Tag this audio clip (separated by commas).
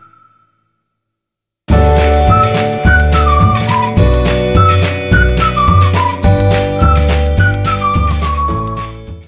Music